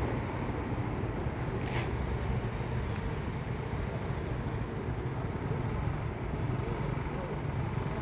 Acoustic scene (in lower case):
street